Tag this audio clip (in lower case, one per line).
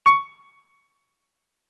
musical instrument
music
keyboard (musical)
piano